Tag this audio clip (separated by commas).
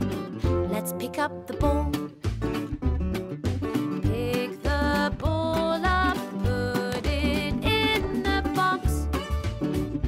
Music